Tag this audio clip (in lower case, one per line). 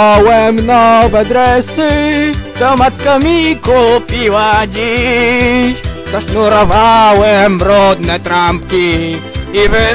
music